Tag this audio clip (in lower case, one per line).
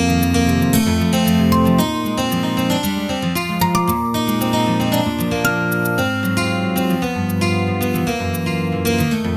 music